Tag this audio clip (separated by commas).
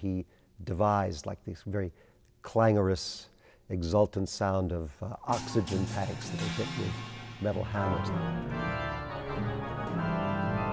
Music, Speech